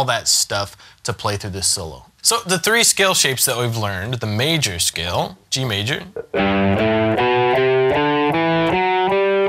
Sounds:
Strum, Speech, Guitar, Music, Electric guitar, Musical instrument, Plucked string instrument

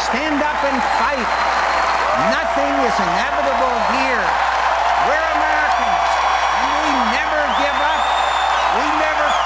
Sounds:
Speech, man speaking

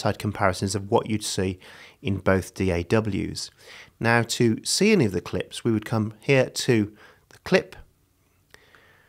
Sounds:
Speech

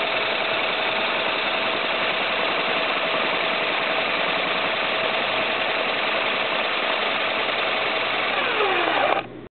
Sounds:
Idling

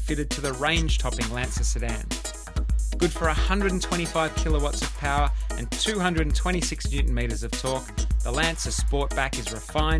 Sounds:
Music, Speech

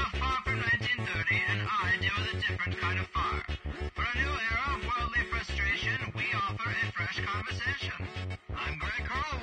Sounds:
Music, outside, urban or man-made, Speech

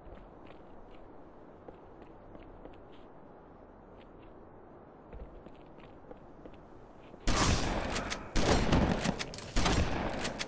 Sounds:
Gunshot

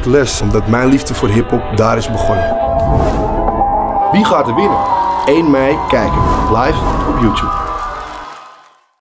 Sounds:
Speech, Music

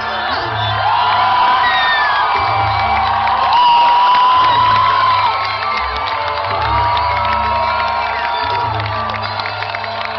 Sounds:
Cheering

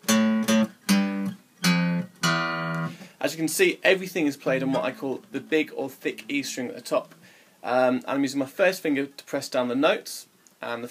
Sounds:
Guitar, Musical instrument, Speech, Plucked string instrument, Music

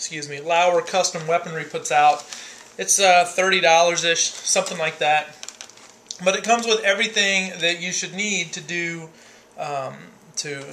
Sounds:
Speech

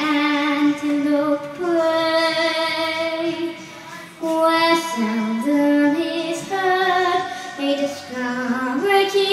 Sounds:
Child singing, Singing, Music

